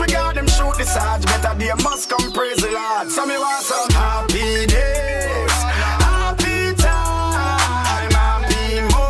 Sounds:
hip hop music, music

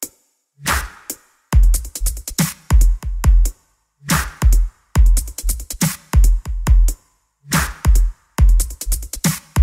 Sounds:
drum, percussion

